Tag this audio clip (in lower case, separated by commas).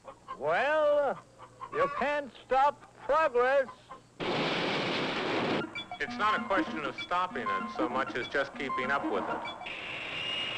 speech, music